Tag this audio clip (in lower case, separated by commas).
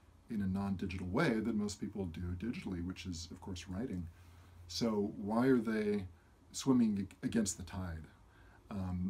speech